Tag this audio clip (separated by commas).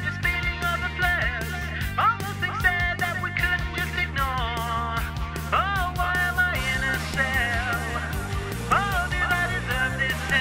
Music